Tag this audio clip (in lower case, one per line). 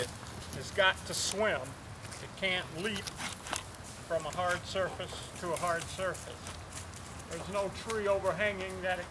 speech